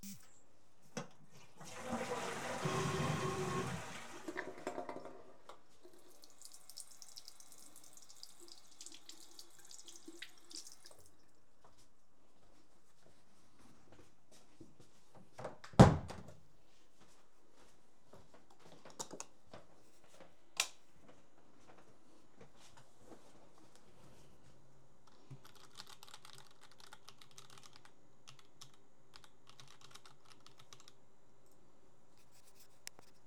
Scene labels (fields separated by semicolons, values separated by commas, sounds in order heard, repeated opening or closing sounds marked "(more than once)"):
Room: lavatory, hallway, bedroom; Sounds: toilet flushing, running water, footsteps, door, light switch, keyboard typing